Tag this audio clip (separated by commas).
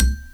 Percussion, Musical instrument, Mallet percussion, xylophone, Music